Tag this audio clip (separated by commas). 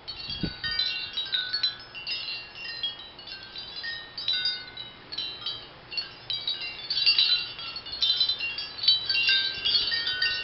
Chime, Wind chime